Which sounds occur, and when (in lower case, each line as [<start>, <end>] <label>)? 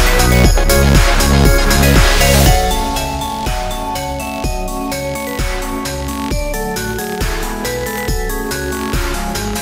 [0.00, 9.61] music